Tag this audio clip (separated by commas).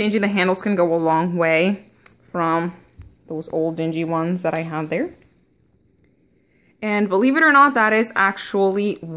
Speech